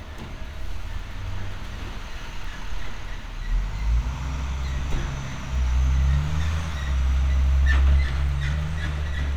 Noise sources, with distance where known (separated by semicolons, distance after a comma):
large-sounding engine, near